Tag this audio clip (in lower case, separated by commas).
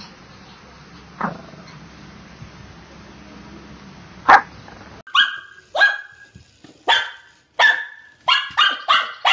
dog barking